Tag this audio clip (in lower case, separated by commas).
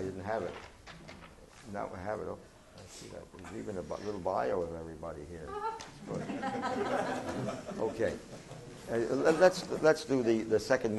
speech